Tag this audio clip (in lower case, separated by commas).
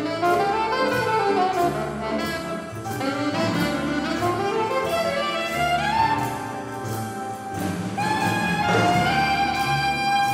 jazz, music, musical instrument